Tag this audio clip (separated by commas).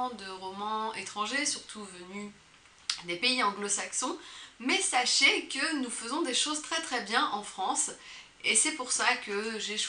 Speech